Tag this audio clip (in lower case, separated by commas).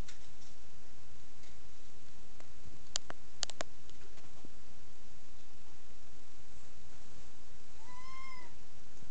domestic animals, meow, cat